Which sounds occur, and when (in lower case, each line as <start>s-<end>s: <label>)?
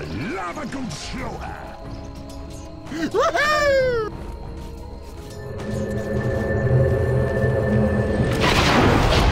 0.0s-9.3s: music
0.0s-9.3s: video game sound
0.0s-1.9s: man speaking
2.0s-2.7s: sound effect
2.8s-4.1s: man speaking
4.5s-4.7s: sound effect
4.9s-5.3s: sound effect
5.5s-6.4s: sound effect
8.2s-9.3s: sound effect